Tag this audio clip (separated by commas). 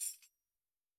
Tambourine, Musical instrument, Music, Percussion